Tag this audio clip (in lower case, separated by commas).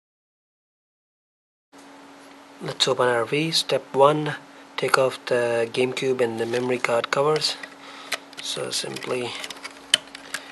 speech